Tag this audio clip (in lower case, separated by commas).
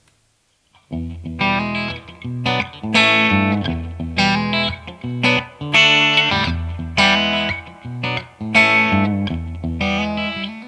musical instrument, music, guitar, plucked string instrument, strum, electric guitar